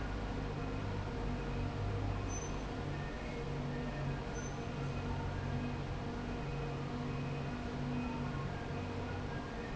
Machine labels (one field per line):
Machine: fan